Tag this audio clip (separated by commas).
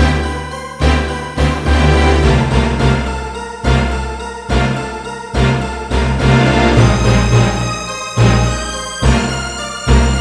Music